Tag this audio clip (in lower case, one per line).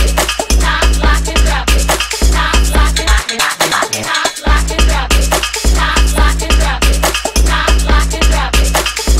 music